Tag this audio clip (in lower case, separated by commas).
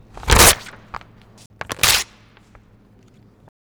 tearing